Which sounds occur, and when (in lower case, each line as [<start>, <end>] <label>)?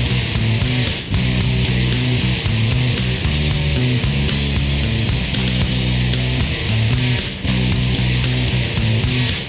[0.00, 9.45] music